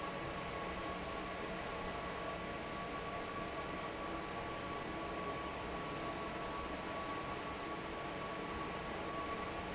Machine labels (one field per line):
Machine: fan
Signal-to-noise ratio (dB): 0 dB